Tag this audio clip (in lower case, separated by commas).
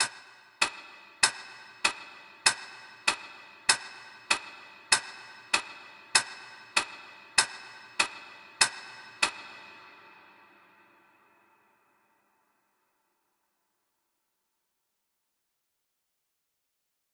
tick-tock, mechanisms, clock